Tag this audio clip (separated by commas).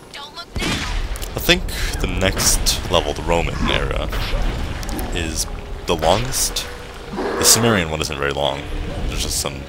Speech